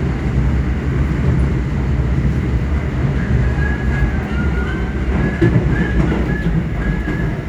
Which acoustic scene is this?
subway train